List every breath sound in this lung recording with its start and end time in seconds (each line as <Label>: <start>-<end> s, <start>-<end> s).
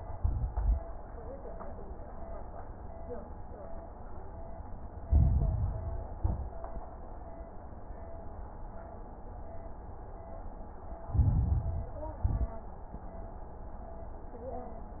Inhalation: 5.04-6.10 s, 11.04-12.10 s
Exhalation: 0.00-0.83 s, 6.16-6.72 s, 12.24-12.81 s
Crackles: 0.00-0.83 s, 5.04-6.10 s, 6.16-6.72 s, 11.04-12.10 s, 12.24-12.81 s